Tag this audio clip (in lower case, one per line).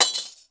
glass
shatter